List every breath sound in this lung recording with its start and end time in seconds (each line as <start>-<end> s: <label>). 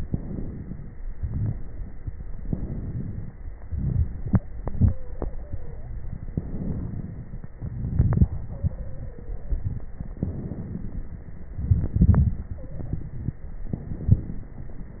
0.00-0.94 s: inhalation
0.00-0.94 s: crackles
0.98-2.34 s: exhalation
0.98-2.34 s: crackles
2.36-3.66 s: inhalation
2.36-3.66 s: crackles
3.65-5.35 s: exhalation
4.81-5.95 s: stridor
6.05-7.55 s: inhalation
6.05-7.55 s: crackles
7.57-10.17 s: exhalation
8.47-9.62 s: stridor
10.15-11.50 s: inhalation
10.15-11.50 s: crackles
11.51-13.70 s: exhalation
12.59-13.05 s: stridor
13.71-15.00 s: inhalation
13.71-15.00 s: crackles